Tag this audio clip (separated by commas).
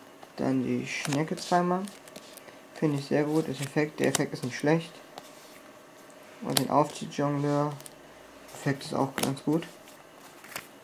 Speech